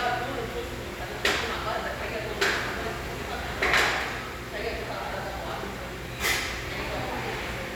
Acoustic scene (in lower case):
restaurant